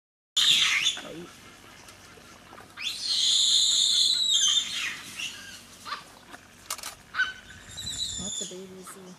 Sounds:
animal
speech

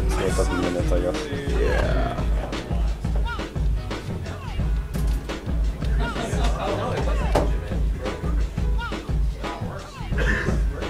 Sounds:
speech
music

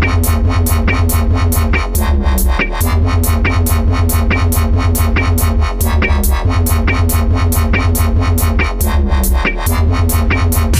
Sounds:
electronic music
music
dubstep

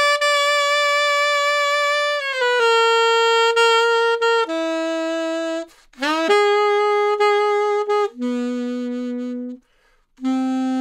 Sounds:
playing saxophone

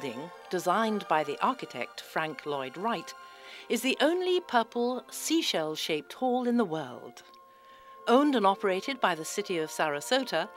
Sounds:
music
speech

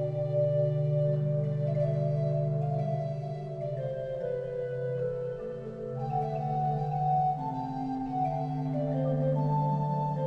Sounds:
music

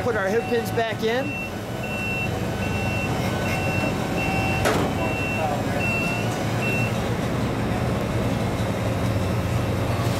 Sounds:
vehicle

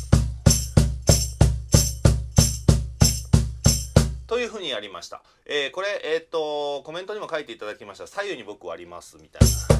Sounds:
playing tambourine

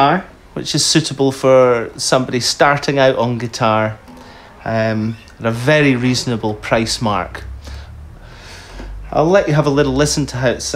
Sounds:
strum
plucked string instrument
music
speech
guitar
musical instrument

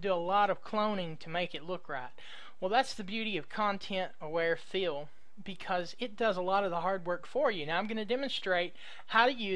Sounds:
speech

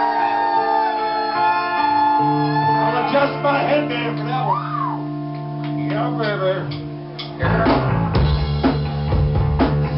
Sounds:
music
speech

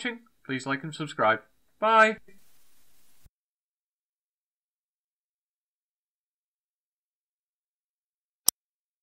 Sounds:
speech
silence

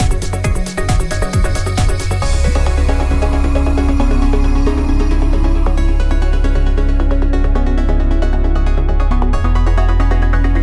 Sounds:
music

